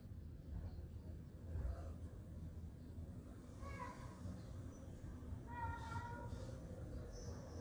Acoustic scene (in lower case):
residential area